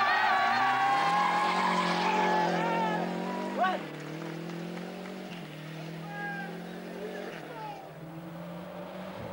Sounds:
skidding, speech, race car, vehicle

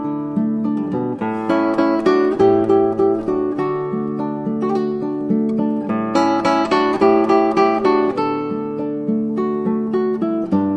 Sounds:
musical instrument, music, plucked string instrument, guitar, acoustic guitar

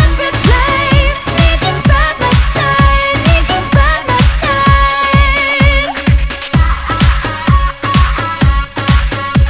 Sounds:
dance music, music

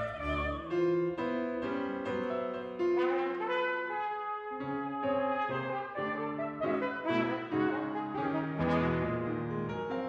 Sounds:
violin, orchestra, piano, trumpet, classical music, music, musical instrument

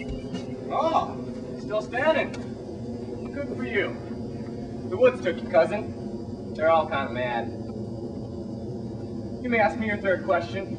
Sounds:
speech

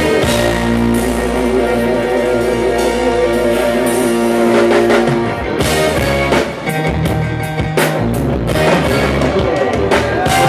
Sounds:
music

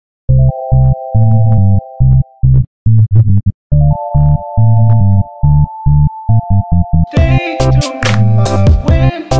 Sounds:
music

